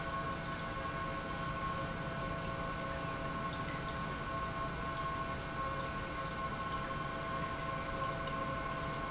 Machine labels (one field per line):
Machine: pump